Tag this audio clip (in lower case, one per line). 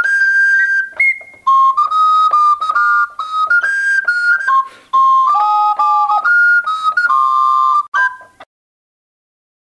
inside a small room
musical instrument
music
keyboard (musical)